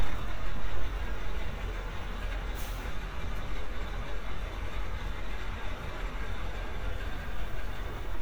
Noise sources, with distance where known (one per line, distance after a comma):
large-sounding engine